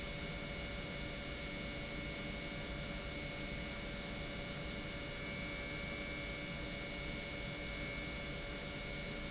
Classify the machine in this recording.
pump